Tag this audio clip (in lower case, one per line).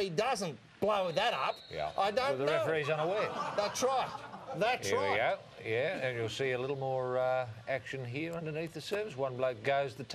speech